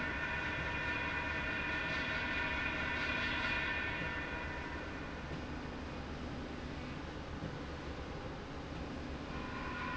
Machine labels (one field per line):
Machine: slide rail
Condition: normal